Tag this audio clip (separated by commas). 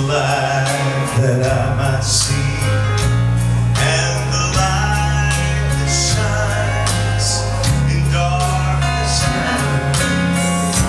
Male singing, Music